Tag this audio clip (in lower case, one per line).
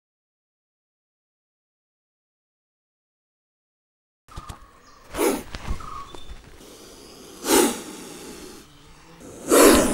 snake hissing